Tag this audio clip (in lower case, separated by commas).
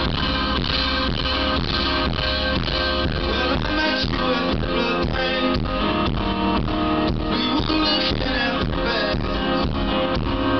music